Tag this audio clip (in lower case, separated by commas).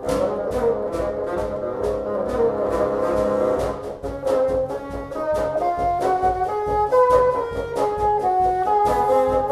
playing bassoon